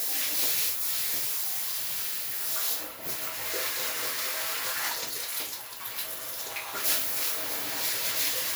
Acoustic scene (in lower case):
restroom